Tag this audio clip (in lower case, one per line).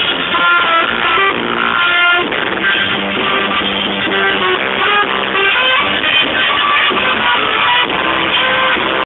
music